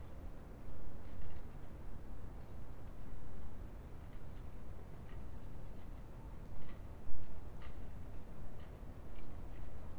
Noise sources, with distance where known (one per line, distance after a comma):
background noise